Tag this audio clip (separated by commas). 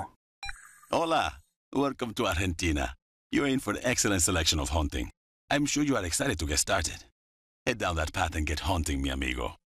Speech